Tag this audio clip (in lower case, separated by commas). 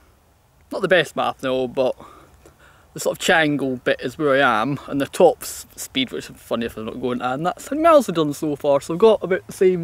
speech